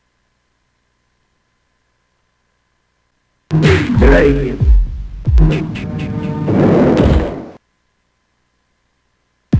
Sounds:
sound effect

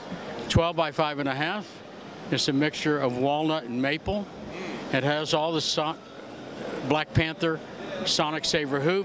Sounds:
speech

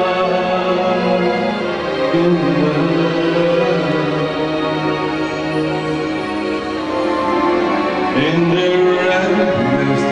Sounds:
music, male singing

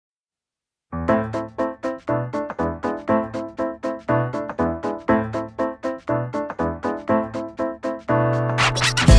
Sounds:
electric piano

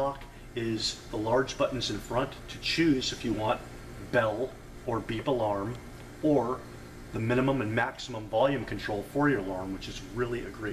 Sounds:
speech

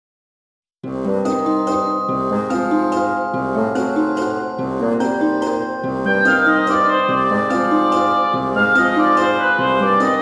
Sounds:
soundtrack music, music

